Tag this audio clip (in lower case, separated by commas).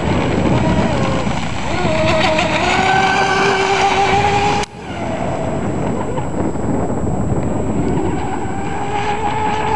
water vehicle, motorboat